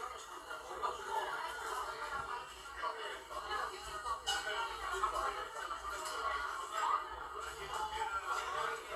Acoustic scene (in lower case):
crowded indoor space